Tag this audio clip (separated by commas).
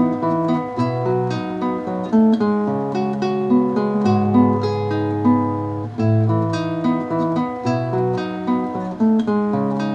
Acoustic guitar, playing acoustic guitar, Plucked string instrument, Musical instrument, Guitar, Music, Strum